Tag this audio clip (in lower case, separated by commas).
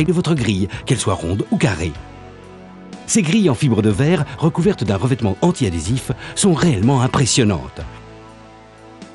music, speech